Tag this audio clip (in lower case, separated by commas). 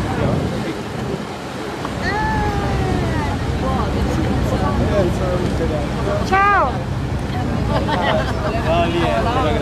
wind noise (microphone), wind